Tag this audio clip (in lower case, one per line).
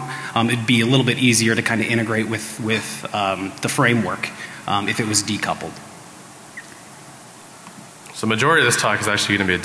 speech
inside a large room or hall